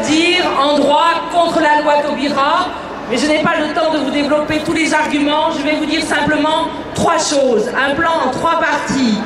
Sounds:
Speech

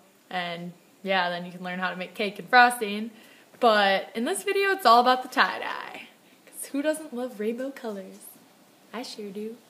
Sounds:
inside a small room, Speech

